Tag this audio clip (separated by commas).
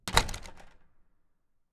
Door, Slam, Domestic sounds